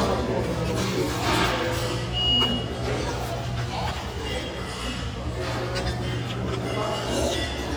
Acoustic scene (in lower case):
restaurant